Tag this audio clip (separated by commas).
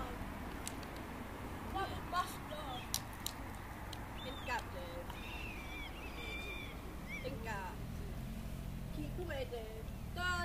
Speech